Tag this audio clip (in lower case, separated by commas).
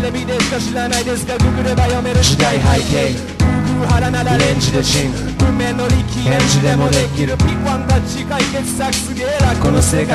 music, hip hop music, singing